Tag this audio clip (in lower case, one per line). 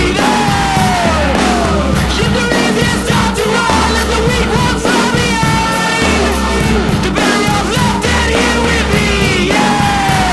music